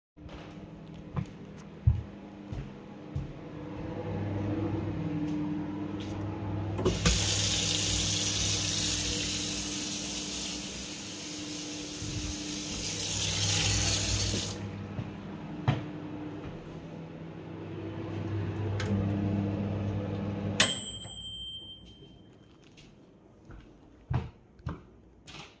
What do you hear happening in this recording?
Moving towards running microwave, tuning water on and of, moving away